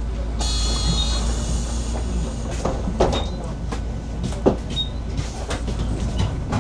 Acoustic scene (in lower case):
bus